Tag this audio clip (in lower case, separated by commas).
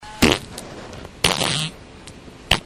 fart